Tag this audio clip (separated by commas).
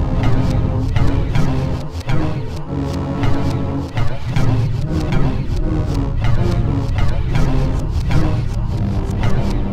Music, Soundtrack music